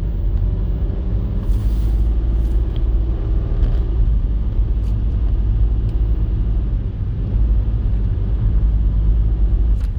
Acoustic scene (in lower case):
car